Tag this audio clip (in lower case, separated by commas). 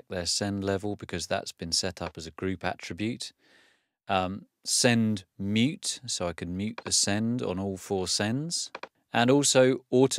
speech